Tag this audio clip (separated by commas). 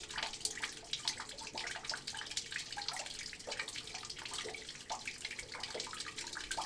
Rain, Water